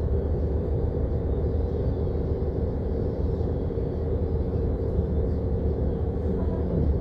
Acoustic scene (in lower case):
bus